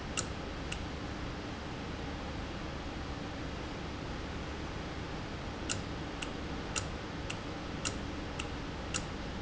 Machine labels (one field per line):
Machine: valve